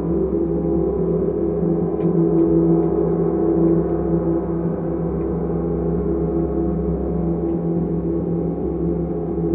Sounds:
playing gong

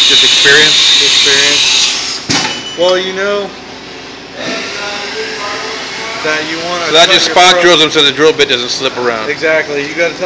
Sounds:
Tools, Speech

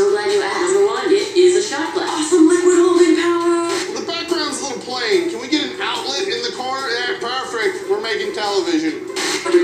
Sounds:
Music, Speech

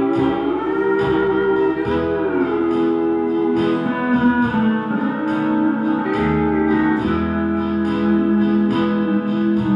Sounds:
Music, Musical instrument, Guitar

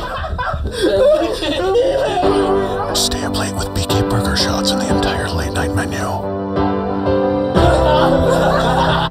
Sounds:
Speech, inside a small room, Music

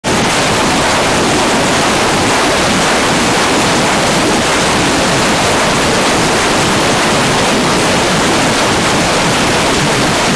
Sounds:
outside, rural or natural

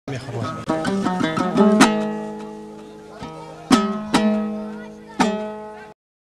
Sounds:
Music, Speech

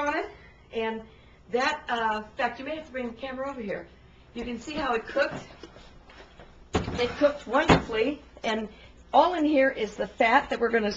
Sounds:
Speech

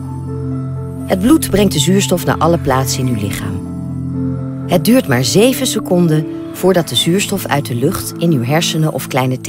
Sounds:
Speech, New-age music, Music

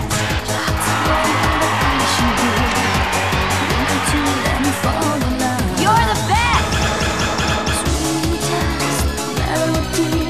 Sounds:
Music

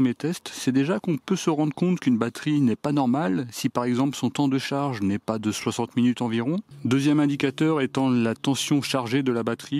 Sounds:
electric grinder grinding

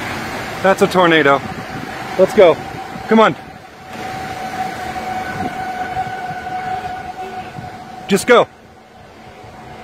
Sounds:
tornado roaring

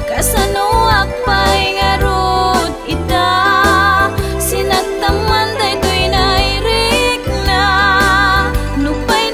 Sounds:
Music

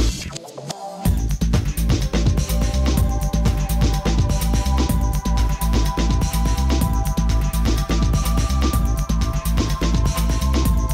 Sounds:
Music

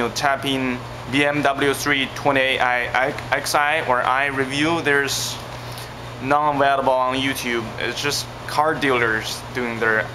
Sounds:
Speech

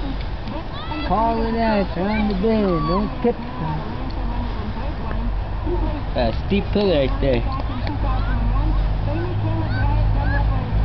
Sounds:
Speech

